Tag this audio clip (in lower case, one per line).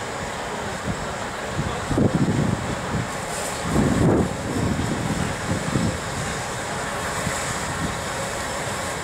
steam
hiss